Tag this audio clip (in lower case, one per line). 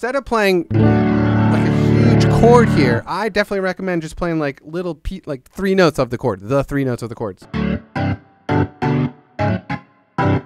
guitar
music
speech